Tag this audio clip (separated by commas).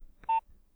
Telephone, Alarm